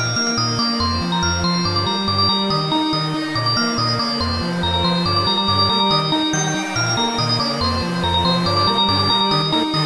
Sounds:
Music, Techno, Electronic music

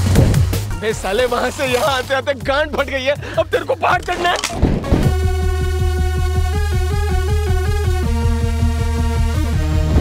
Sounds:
Music, Speech

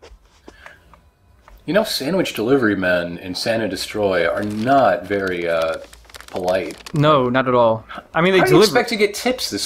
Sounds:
Speech

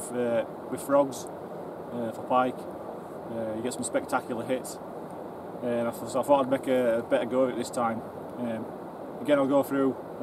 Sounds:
Speech

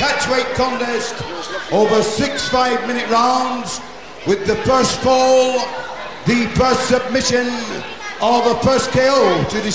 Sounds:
Speech

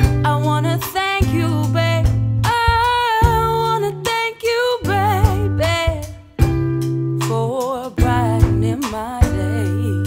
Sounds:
Music

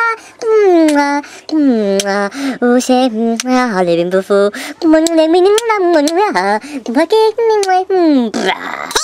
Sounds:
Speech

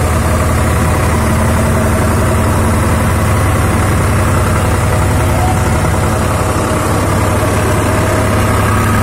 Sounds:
tractor digging

